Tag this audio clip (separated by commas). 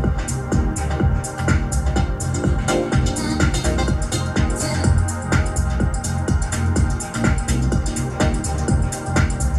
Pop music, Music, Dance music, House music